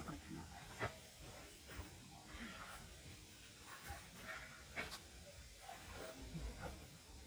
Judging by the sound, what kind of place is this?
park